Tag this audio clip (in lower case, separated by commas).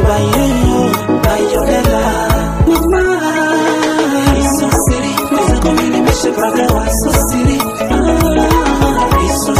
music